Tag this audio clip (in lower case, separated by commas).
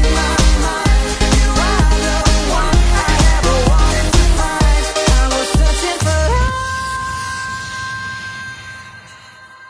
pop music, music